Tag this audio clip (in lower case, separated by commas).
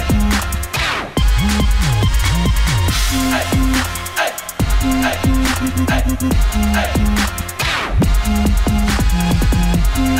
electronic music, music